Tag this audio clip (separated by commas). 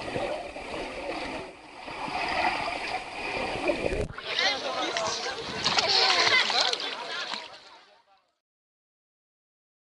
Slosh, Speech, Water